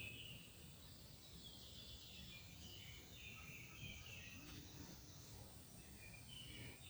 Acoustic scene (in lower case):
park